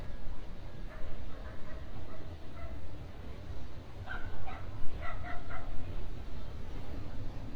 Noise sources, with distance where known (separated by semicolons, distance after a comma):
dog barking or whining